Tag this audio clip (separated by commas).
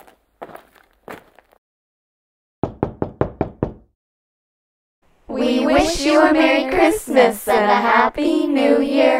inside a small room, Knock